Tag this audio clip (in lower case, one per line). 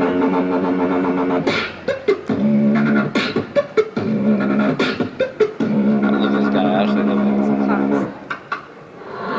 dubstep
speech